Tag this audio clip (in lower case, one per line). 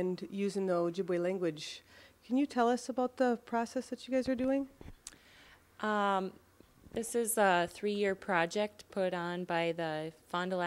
speech